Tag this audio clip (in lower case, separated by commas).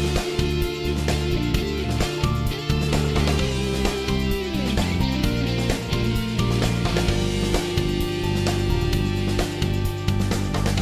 music